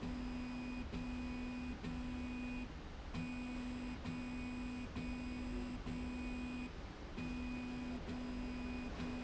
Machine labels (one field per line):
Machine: slide rail